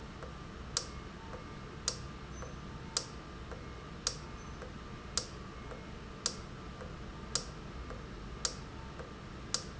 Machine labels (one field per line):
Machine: valve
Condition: normal